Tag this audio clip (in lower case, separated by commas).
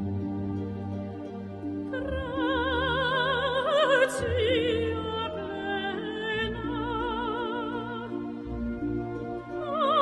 music